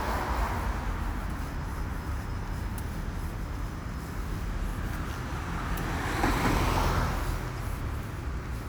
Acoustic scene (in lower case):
street